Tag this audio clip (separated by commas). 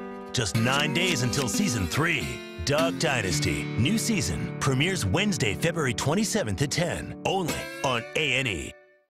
Music, Speech